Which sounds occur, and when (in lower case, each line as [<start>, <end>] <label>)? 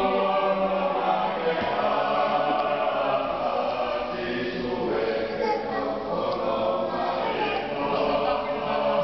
[0.00, 9.03] choir
[0.00, 9.03] noise
[7.51, 7.57] generic impact sounds